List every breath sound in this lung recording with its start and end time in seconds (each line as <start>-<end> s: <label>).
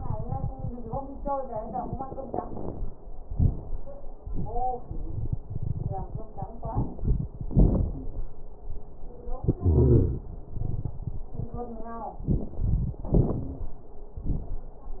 1.64-2.89 s: inhalation
1.64-2.89 s: crackles
3.30-3.77 s: exhalation
3.30-3.77 s: crackles
9.59-10.23 s: wheeze